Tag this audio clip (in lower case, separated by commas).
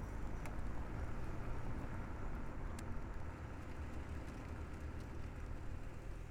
vehicle, car, motor vehicle (road)